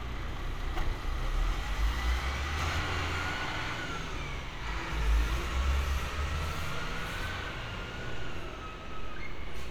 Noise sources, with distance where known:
large-sounding engine, near

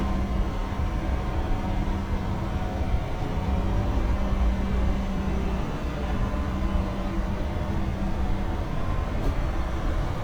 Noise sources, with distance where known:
large-sounding engine

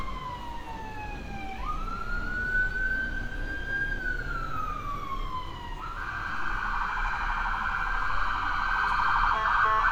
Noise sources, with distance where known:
siren, near

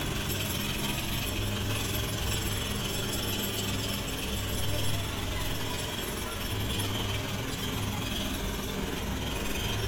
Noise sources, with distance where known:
jackhammer, near

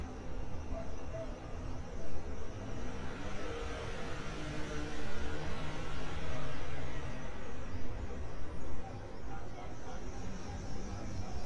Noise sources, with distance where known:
engine of unclear size, far
unidentified human voice, far
dog barking or whining, far

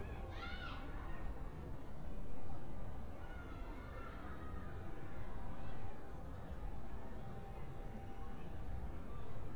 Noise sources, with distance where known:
person or small group shouting

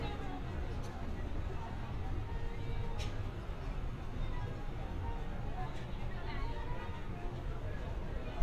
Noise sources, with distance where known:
music from a fixed source, far
person or small group talking, far

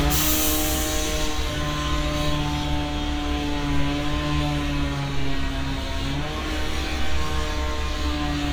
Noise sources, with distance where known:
chainsaw, near

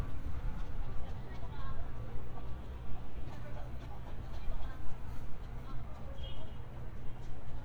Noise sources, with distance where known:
car horn
person or small group talking

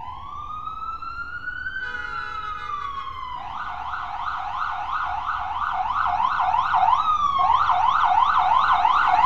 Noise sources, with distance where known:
car horn
siren, near

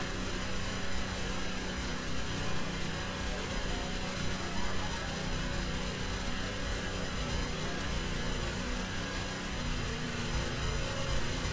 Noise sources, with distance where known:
unidentified impact machinery, near

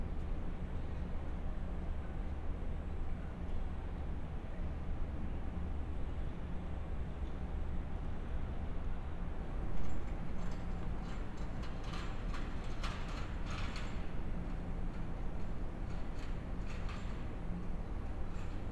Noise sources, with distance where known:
background noise

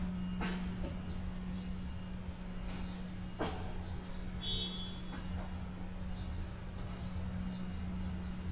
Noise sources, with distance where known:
non-machinery impact, near
car horn, near

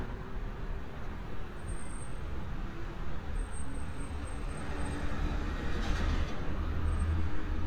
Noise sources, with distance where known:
engine of unclear size, near

